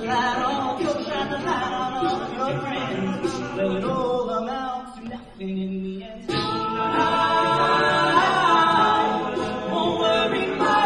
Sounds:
Vocal music, Singing, Music, A capella

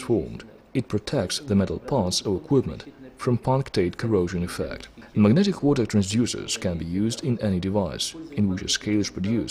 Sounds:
Speech

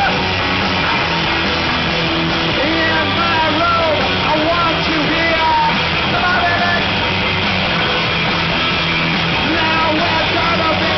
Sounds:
Music

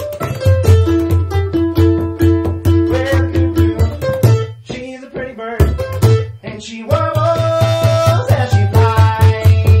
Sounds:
Drum, Singing, Percussion, Music, Mandolin

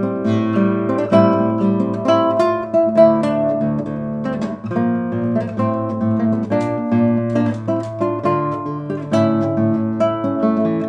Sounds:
Acoustic guitar, Plucked string instrument, Music, Guitar, Musical instrument

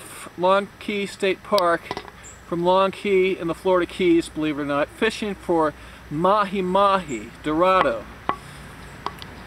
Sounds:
Speech

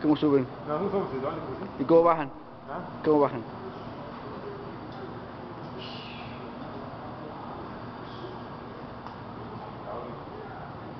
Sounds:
Speech

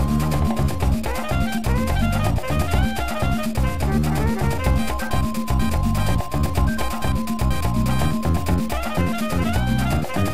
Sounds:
Video game music, Music

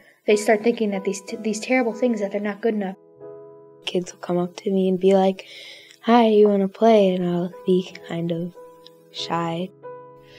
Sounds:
Music, Speech

